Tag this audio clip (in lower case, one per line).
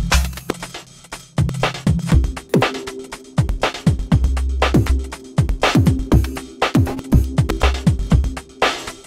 drum
musical instrument
music
soundtrack music